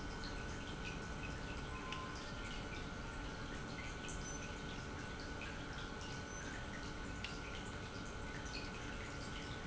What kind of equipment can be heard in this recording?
pump